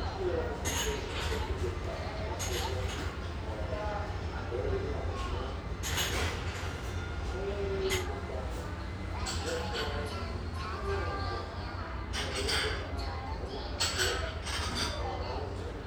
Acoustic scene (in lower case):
restaurant